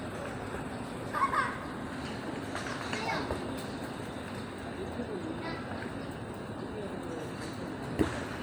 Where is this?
in a park